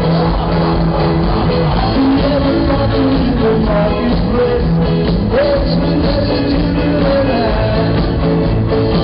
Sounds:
music of latin america, music

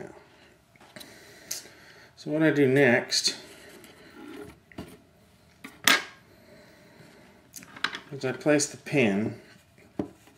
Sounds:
speech

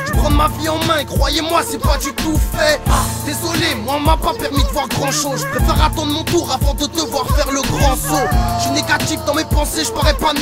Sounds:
music

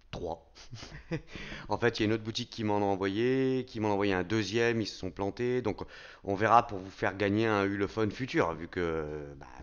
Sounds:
speech

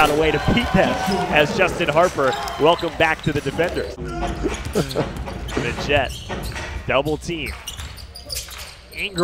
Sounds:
speech

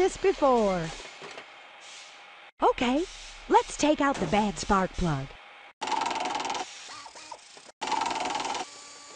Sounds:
inside a small room, speech, tools

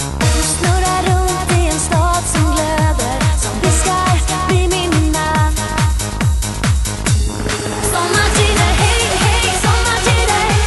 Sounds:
techno, music, electronic music

